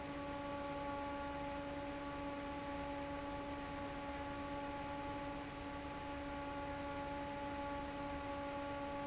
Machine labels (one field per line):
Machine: fan